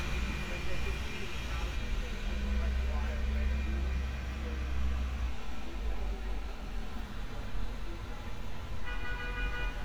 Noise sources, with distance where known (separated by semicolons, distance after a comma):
car horn, near; person or small group talking